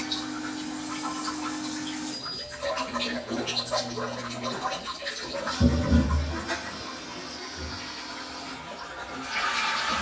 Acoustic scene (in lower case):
restroom